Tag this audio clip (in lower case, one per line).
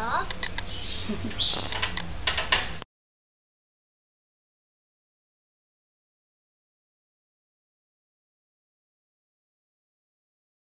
speech
silence
inside a small room